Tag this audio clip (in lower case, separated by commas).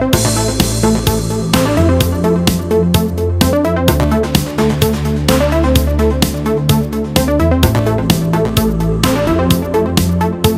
music, house music